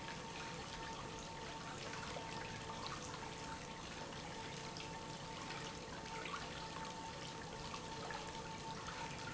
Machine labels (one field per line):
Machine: pump